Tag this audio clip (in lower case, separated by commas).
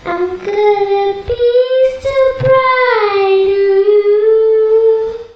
human voice, singing